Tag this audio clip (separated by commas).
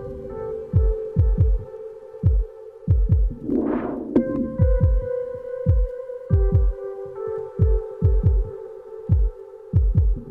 Music, Drum and bass, Electronic music